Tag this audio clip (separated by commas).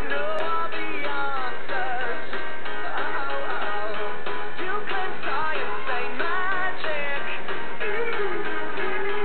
Music